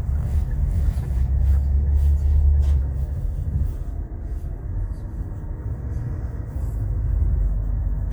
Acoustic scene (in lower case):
car